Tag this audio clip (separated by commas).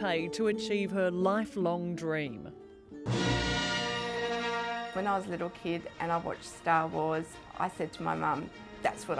Speech, Music, Theme music